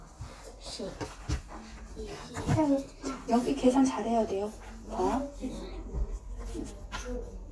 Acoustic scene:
crowded indoor space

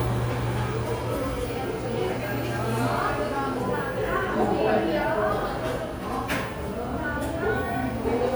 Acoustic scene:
cafe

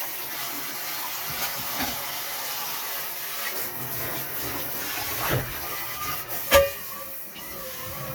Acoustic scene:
kitchen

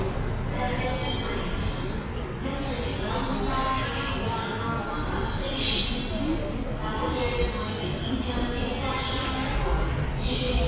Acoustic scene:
subway station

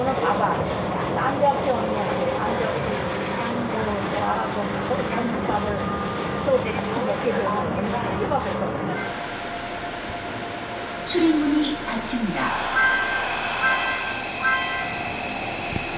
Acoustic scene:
subway train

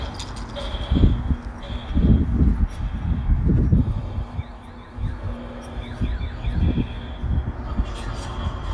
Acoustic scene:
residential area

